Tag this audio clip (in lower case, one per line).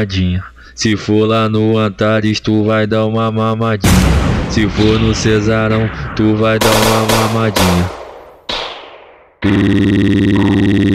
musical instrument
sampler
music